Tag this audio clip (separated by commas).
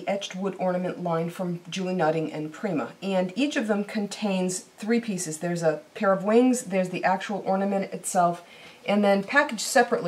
Speech